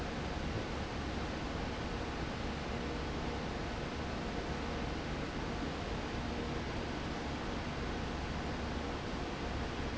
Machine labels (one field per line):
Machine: fan